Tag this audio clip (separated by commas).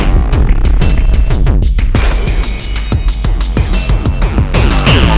Drum kit, Musical instrument, Music, Percussion